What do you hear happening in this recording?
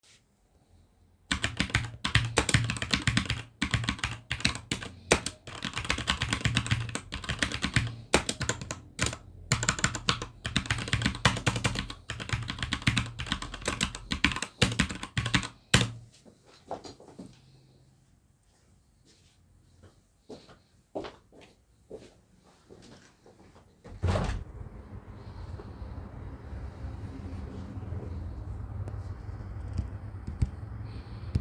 I typed on the keyboard. Then I walked to the window and opened it.